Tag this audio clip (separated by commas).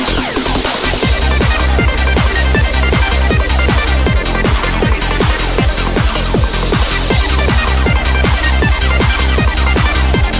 Music